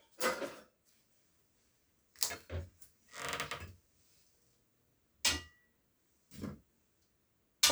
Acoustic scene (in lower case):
kitchen